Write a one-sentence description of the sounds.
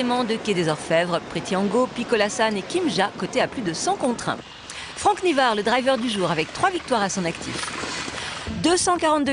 An adult female is speaking, and a hoofed animal is trotting